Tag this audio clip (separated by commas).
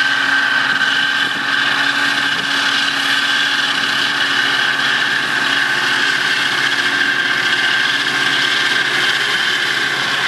Vehicle